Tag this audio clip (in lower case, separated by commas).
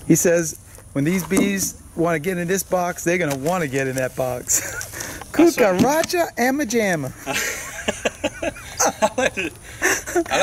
speech